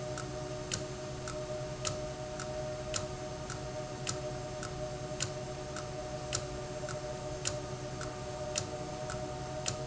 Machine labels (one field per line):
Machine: valve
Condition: abnormal